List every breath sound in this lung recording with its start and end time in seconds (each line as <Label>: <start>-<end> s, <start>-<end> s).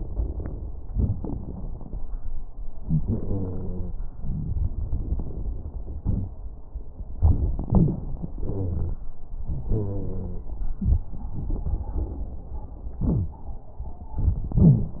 Inhalation: 0.00-0.66 s, 2.81-3.96 s, 7.20-8.31 s, 9.38-10.78 s
Exhalation: 0.87-2.03 s, 4.19-6.31 s, 8.36-9.07 s, 10.79-12.56 s
Wheeze: 2.81-3.96 s, 7.66-7.98 s, 8.36-9.07 s, 9.38-10.49 s, 12.99-13.41 s, 14.56-14.99 s
Crackles: 0.00-0.66 s, 0.87-2.03 s, 4.19-6.31 s, 10.79-12.56 s